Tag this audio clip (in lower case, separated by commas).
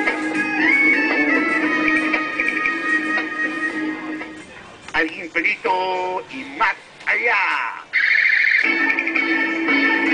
speech, music